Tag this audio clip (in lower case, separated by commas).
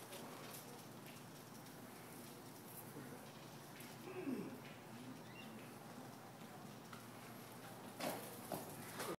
bicycle, vehicle